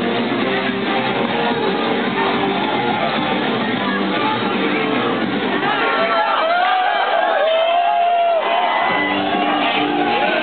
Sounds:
Music, Speech

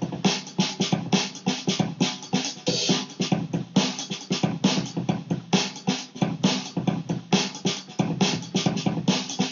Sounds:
Music, Drum, Musical instrument

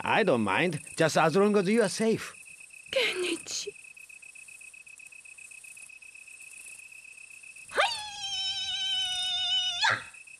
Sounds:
Speech

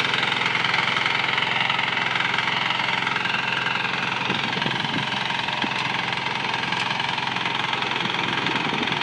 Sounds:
tractor digging

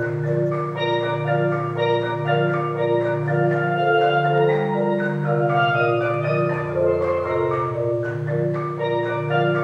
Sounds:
Music

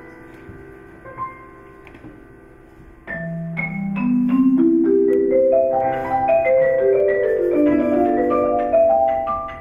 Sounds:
playing vibraphone

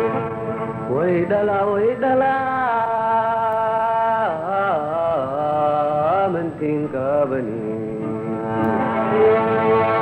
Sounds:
Music

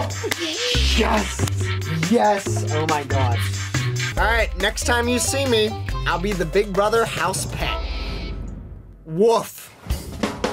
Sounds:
Music, Speech

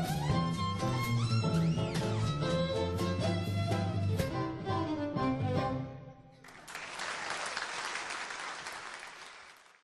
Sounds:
Musical instrument, fiddle, Music

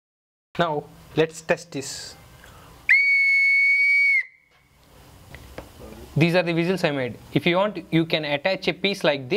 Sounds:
Whistle

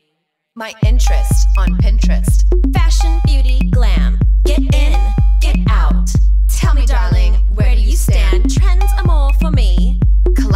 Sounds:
Music

